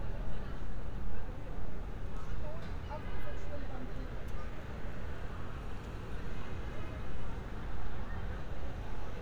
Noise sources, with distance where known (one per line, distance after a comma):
background noise